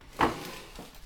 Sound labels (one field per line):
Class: furniture moving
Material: wooden